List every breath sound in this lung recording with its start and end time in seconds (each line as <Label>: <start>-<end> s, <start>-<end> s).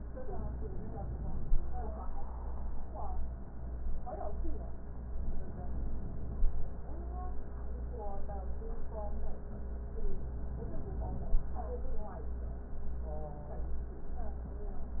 Inhalation: 5.14-6.54 s, 10.15-11.54 s